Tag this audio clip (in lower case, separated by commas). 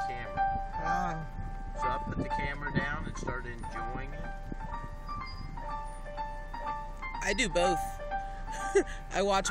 music, speech